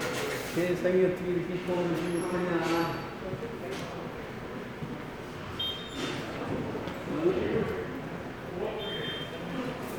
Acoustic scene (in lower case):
subway station